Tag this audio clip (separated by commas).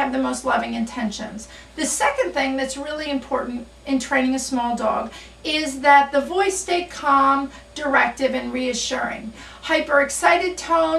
Speech